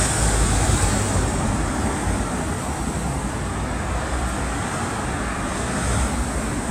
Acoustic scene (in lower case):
street